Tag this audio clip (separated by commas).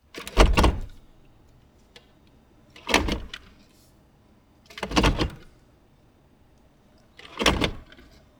Vehicle, Motor vehicle (road), Car